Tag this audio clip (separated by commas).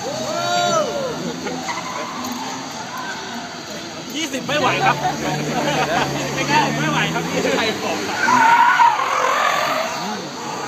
Speech